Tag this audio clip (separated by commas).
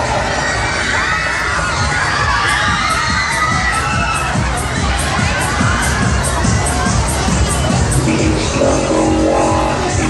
Music